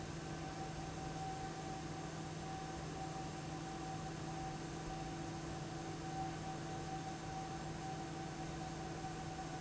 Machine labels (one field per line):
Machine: fan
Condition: abnormal